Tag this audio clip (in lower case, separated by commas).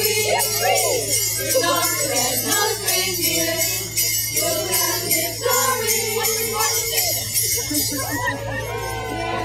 christian music, speech, music